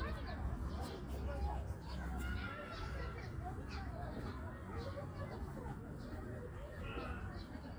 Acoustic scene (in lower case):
park